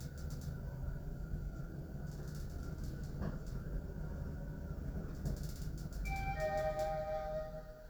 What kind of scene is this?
elevator